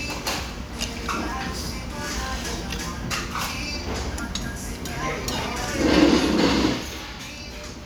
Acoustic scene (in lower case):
restaurant